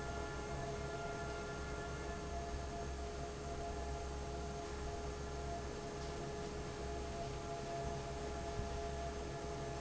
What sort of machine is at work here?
fan